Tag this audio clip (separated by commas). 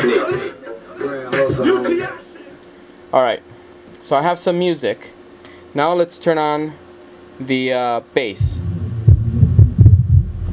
inside a large room or hall, Music, Speech